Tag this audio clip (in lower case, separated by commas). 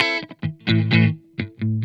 plucked string instrument, electric guitar, guitar, music, musical instrument